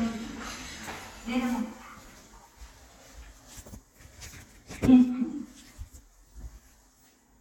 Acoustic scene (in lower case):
elevator